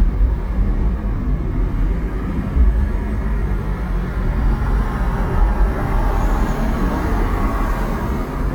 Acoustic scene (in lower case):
car